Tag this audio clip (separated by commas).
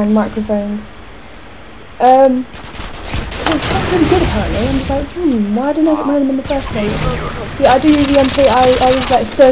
Speech